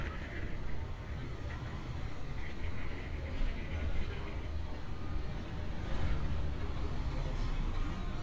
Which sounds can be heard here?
engine of unclear size, person or small group talking